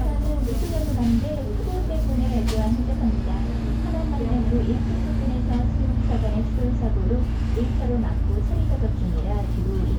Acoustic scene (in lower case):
bus